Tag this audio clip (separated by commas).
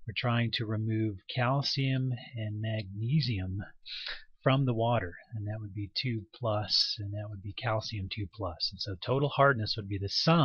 Speech